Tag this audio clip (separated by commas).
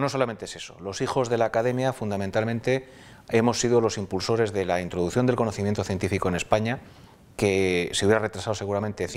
Speech, inside a small room